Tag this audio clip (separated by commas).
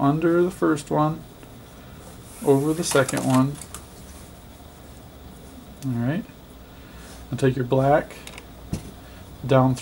Speech